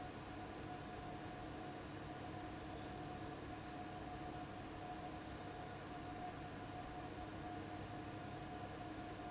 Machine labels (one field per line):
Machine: fan